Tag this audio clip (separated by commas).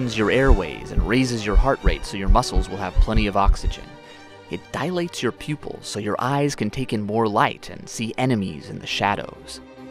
Speech, Music